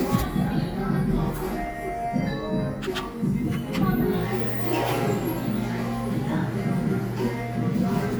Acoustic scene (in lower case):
cafe